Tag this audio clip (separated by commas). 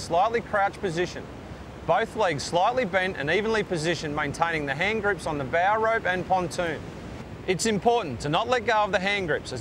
Vehicle, Speech, Water vehicle